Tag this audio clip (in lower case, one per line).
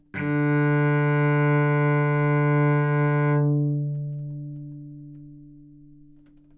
bowed string instrument
musical instrument
music